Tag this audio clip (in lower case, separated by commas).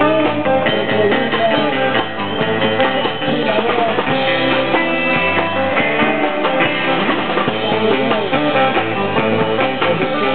speech, music